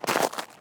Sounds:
footsteps

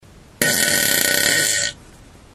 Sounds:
fart

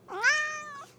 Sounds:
domestic animals
meow
cat
animal

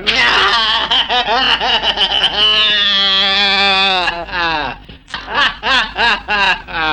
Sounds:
human voice
laughter

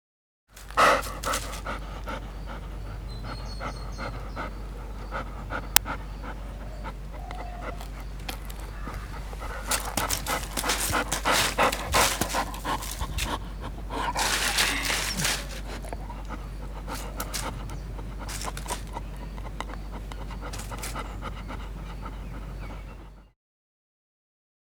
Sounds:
domestic animals
dog
animal

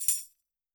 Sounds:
percussion
music
musical instrument
tambourine

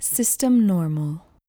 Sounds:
speech
female speech
human voice

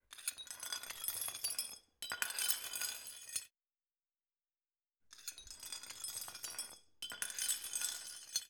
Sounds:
glass

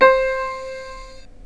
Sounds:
keyboard (musical)
musical instrument
music

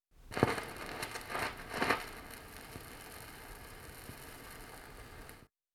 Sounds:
crackle

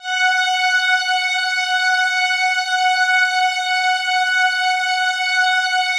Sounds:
bowed string instrument
musical instrument
music

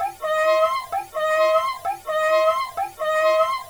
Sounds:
music
musical instrument
bowed string instrument

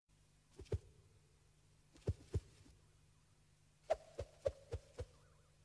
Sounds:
whoosh

